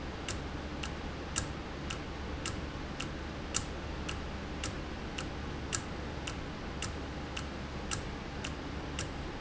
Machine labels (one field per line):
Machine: valve